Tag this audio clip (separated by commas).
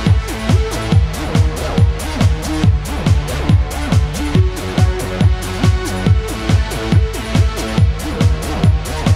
Music, Exciting music, Techno